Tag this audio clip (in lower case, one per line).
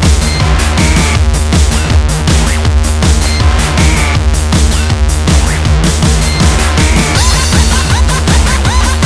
drum and bass